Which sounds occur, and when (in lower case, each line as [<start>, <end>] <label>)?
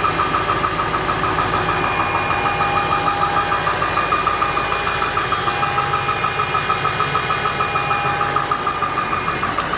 [0.01, 9.75] engine